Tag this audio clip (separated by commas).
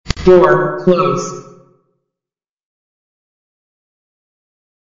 Human voice, Speech